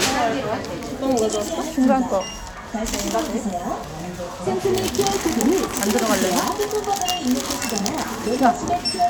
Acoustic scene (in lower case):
crowded indoor space